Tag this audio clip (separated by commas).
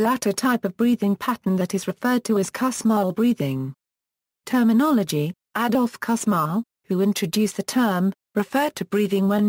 Speech